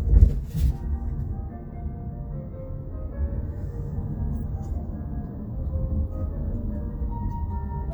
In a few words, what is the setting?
car